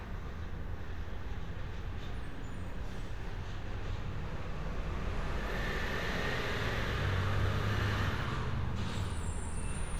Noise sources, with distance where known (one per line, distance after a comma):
engine of unclear size, near